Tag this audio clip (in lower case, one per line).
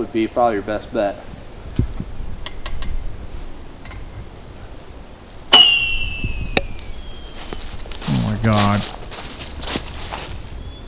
arrow
speech